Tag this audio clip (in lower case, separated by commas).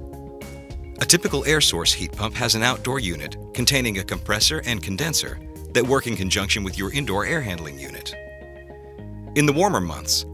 music, speech